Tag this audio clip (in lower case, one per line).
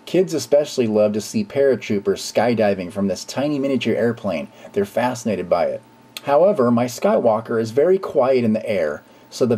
speech